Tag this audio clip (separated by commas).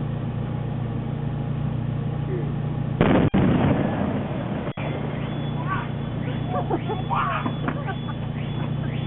Explosion, Speech